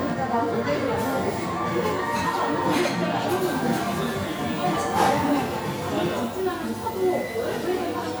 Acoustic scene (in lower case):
crowded indoor space